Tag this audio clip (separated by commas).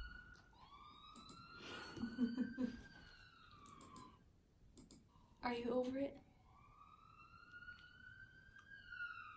dog howling